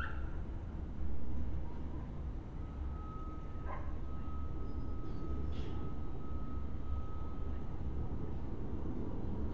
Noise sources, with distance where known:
dog barking or whining, far

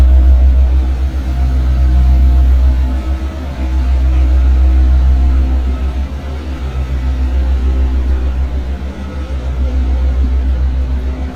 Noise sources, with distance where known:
large-sounding engine, near

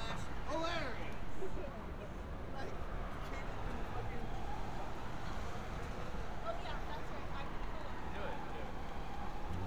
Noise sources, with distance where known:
siren, far
person or small group talking
person or small group shouting

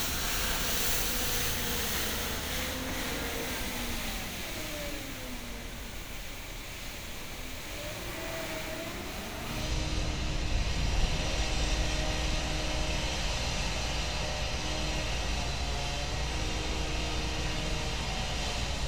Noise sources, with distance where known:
large rotating saw, near

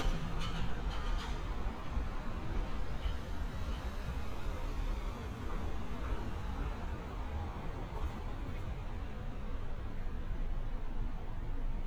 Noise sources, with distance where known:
non-machinery impact, near

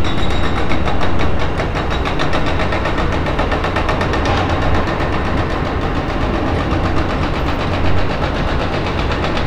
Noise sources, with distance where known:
hoe ram

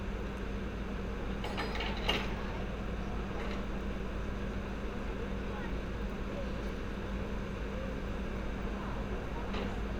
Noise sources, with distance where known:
engine of unclear size, near
non-machinery impact, near
person or small group talking, far

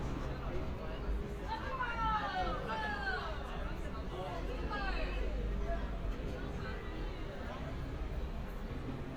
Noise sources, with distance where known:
person or small group talking, far
person or small group shouting, near

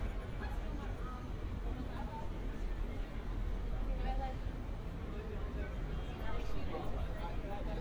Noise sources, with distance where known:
person or small group talking, near

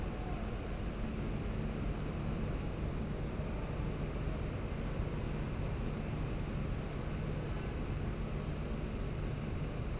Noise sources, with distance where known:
car horn, far

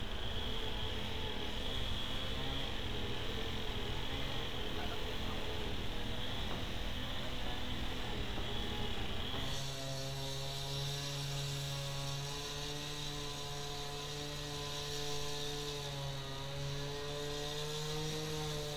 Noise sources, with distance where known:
unidentified powered saw, far

